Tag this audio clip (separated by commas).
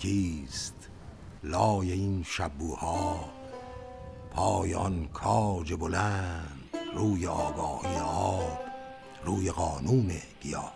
Music, Speech